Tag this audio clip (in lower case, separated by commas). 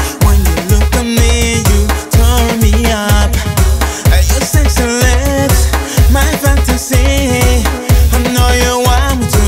music, music of africa, afrobeat